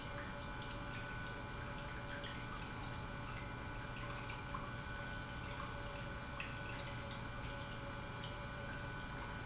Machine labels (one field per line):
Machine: pump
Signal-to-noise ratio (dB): 6 dB